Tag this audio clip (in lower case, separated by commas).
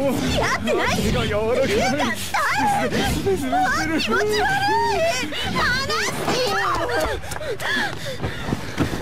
speech